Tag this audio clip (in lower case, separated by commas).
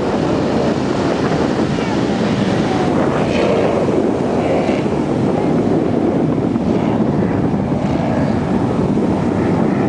ocean, surf